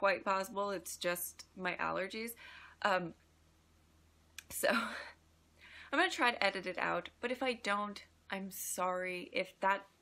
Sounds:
speech

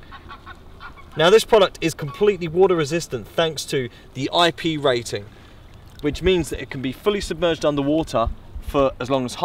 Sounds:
speech

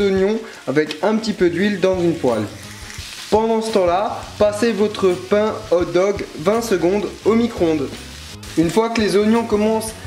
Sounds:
speech, music

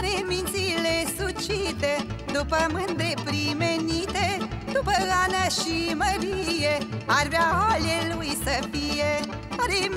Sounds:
music

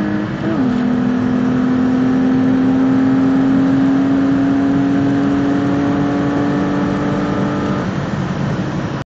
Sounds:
vehicle, car

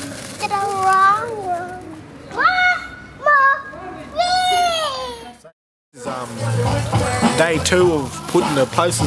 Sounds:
speech, children playing, music, inside a large room or hall

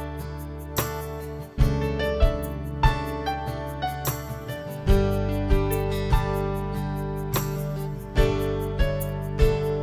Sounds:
music, new-age music

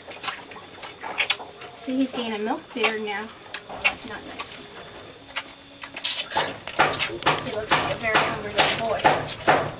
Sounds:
speech, inside a small room

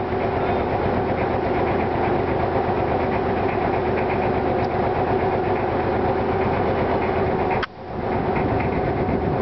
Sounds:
motorboat, speedboat acceleration, vehicle

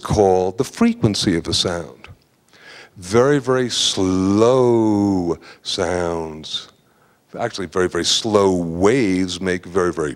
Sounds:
speech

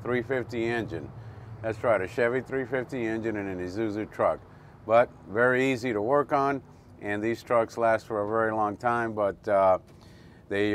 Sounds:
speech

